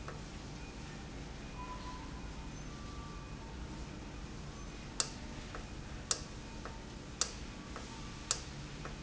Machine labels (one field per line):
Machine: valve